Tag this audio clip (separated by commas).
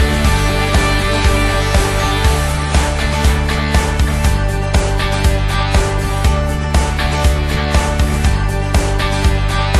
Music